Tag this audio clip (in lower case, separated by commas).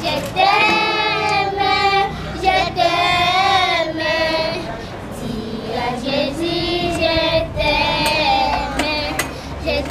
child singing